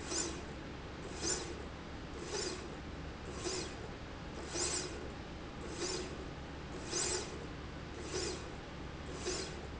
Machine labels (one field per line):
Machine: slide rail